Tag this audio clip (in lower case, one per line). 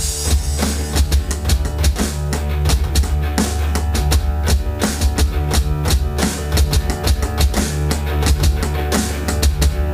percussion
drum
rock music
musical instrument
hi-hat
music
drum kit
cymbal